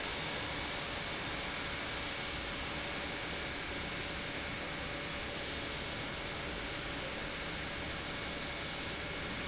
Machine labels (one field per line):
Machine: pump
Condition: normal